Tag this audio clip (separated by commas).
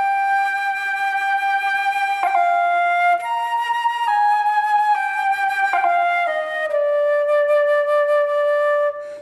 Flute, playing flute, woodwind instrument